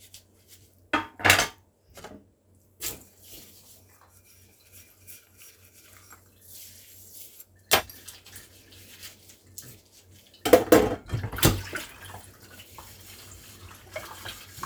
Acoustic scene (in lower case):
kitchen